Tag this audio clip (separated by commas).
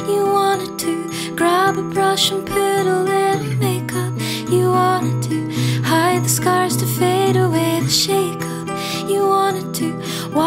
Music